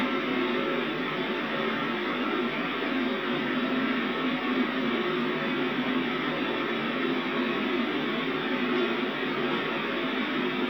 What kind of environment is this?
subway train